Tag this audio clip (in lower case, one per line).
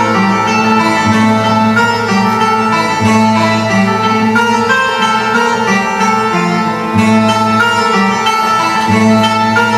guitar
acoustic guitar
musical instrument
music
plucked string instrument